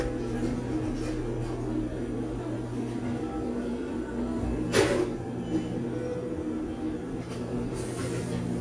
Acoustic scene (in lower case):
cafe